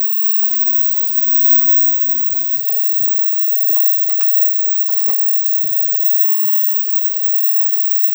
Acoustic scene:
kitchen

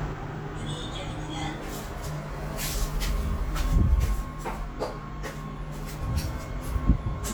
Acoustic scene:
elevator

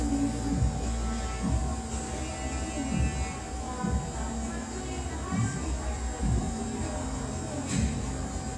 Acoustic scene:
cafe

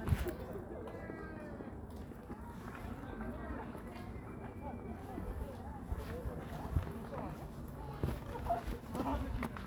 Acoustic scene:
park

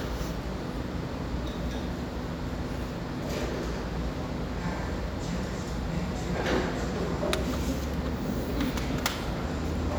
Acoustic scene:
cafe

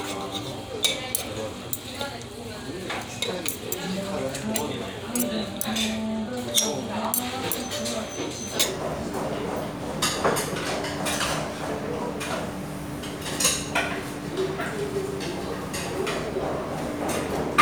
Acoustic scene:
restaurant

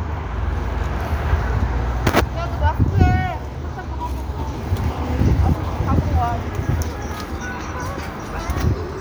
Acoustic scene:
street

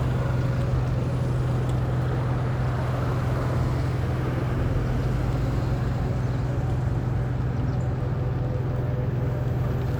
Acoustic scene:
street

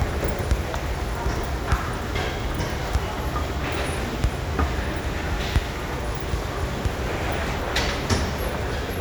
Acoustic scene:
subway station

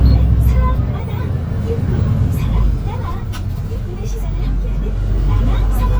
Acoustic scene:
bus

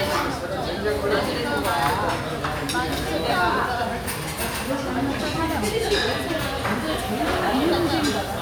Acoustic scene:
restaurant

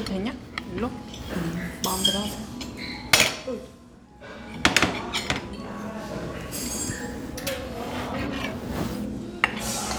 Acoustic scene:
restaurant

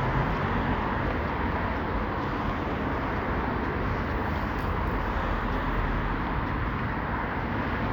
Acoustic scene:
street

